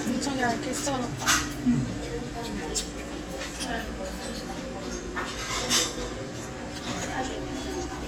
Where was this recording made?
in a restaurant